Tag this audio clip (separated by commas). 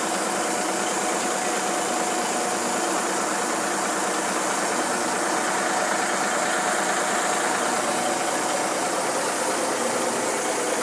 Vehicle, Truck